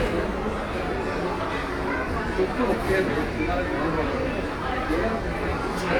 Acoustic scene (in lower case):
crowded indoor space